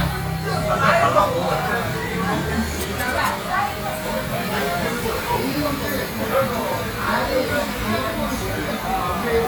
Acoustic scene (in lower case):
crowded indoor space